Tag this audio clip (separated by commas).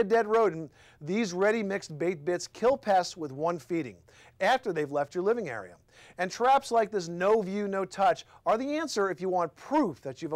Speech